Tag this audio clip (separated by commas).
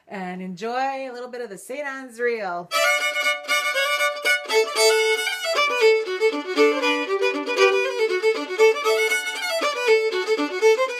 Violin, Musical instrument, Music, Speech